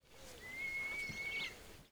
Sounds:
Bird, Animal, Wild animals

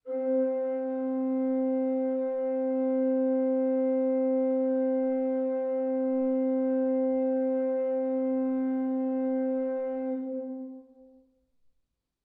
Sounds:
Music, Musical instrument, Organ, Keyboard (musical)

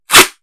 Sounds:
Domestic sounds, duct tape

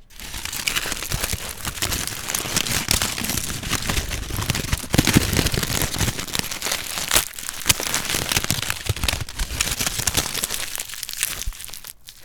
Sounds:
Crumpling

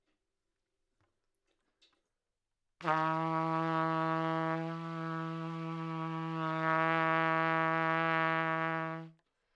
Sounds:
Brass instrument, Music, Musical instrument, Trumpet

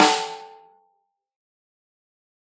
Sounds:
Drum, Music, Musical instrument, Snare drum, Percussion

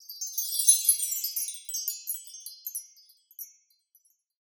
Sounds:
Chime, Bell, Wind chime

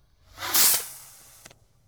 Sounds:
Explosion, Fireworks

